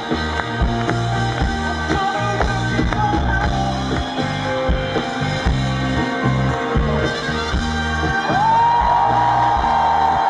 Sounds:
music

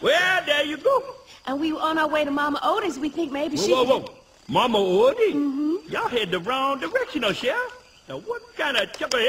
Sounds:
speech

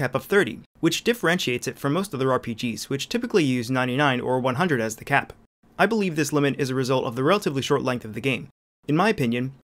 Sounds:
speech

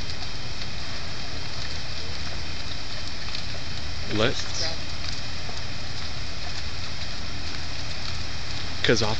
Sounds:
speech, fire

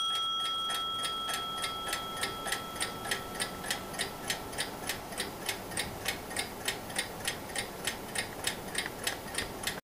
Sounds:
sound effect

